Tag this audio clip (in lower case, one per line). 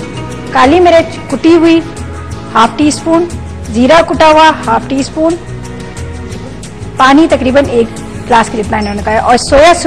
speech
music